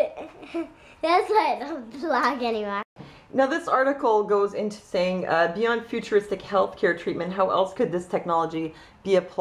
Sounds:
woman speaking

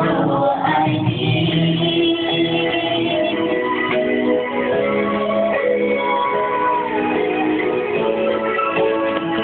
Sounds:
female singing, music

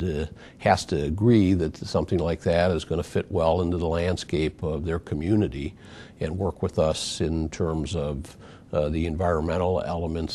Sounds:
speech

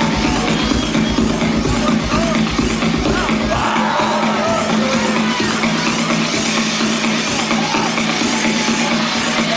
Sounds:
music, techno, electronic music, electronica, speech, electronic dance music, trance music

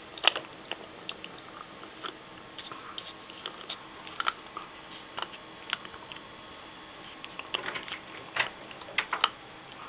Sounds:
biting

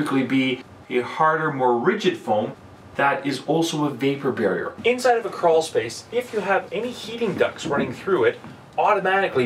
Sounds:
speech

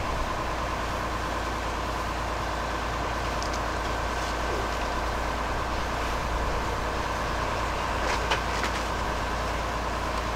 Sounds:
vehicle

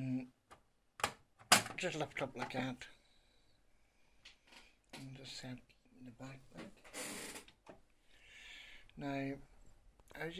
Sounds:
speech

